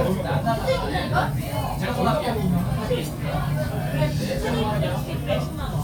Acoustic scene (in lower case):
crowded indoor space